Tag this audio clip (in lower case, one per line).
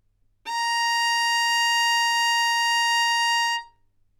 music
bowed string instrument
musical instrument